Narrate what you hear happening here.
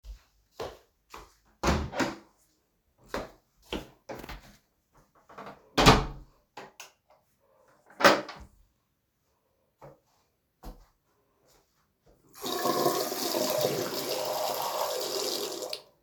entered the washroom locked the door and washed hands.